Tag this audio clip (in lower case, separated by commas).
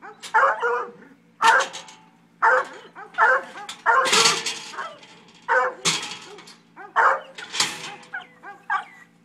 bark, animal, goat